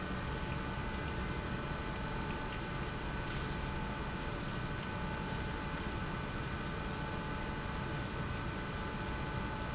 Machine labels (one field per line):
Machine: pump